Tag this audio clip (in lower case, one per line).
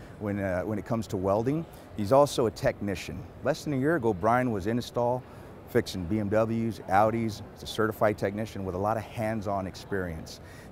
speech